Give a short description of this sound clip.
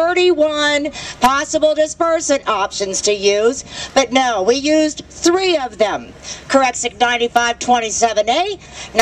Women giving a speech